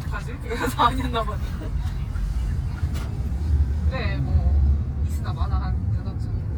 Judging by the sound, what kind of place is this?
car